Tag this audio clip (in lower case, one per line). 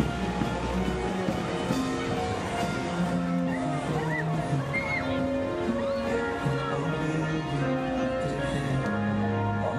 music
speech